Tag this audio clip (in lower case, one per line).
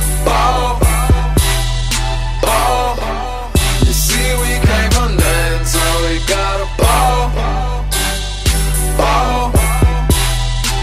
rhythm and blues
music